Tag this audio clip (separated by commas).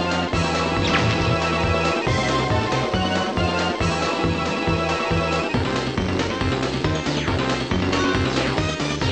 Music